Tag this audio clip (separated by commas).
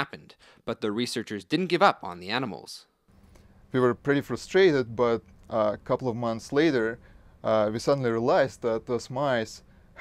Speech